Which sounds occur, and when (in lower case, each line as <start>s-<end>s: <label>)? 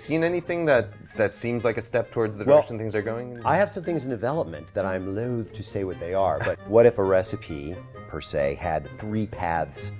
0.0s-9.9s: music
0.0s-7.8s: man speaking
8.1s-9.9s: man speaking